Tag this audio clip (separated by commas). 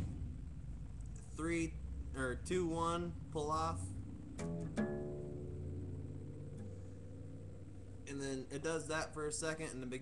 Musical instrument, Strum, Music, Guitar, Plucked string instrument, Acoustic guitar, Speech